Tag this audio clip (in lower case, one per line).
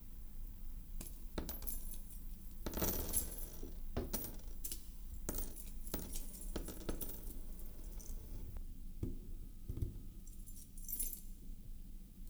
coin (dropping)
home sounds